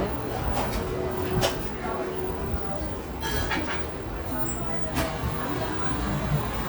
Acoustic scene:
cafe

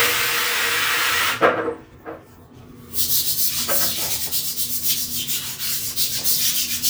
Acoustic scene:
restroom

